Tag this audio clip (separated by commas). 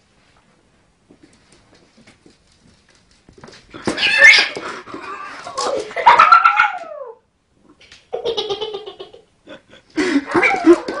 Cat, Animal, Domestic animals